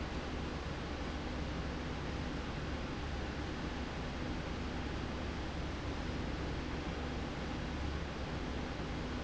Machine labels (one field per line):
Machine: slide rail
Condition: normal